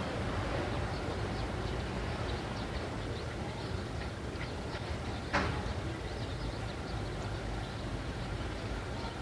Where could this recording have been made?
in a residential area